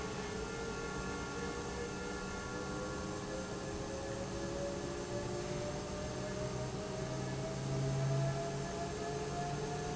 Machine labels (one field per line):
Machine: pump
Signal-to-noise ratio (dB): -6 dB